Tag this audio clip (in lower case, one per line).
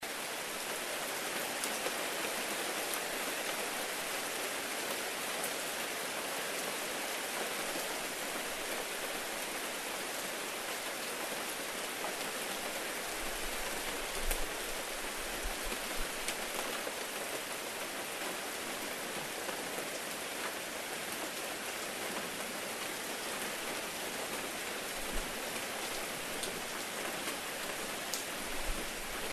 rain
water